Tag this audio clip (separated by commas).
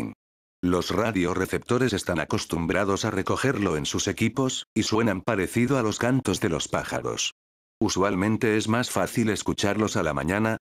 Speech, Radio